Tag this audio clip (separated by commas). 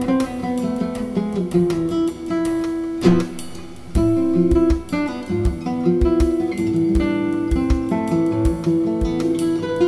Musical instrument, Music